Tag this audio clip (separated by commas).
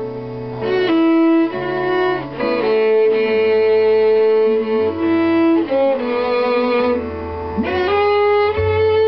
Music